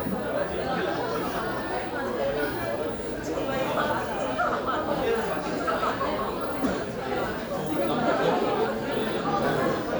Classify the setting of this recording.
crowded indoor space